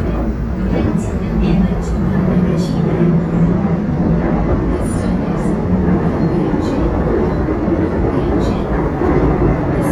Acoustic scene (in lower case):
subway train